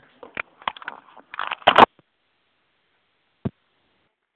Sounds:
telephone
alarm

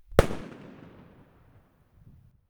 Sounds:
explosion
fireworks

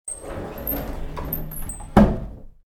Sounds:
door
domestic sounds
sliding door

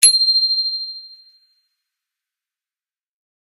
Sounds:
bell
bicycle
bicycle bell
alarm
vehicle

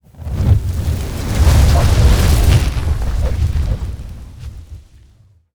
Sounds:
fire

